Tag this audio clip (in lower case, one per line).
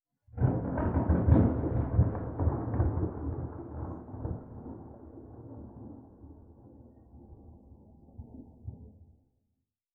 thunder
thunderstorm